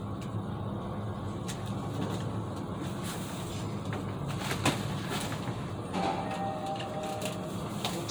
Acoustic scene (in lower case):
elevator